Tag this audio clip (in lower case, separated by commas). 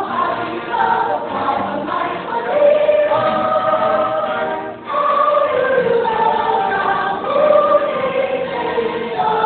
music, tender music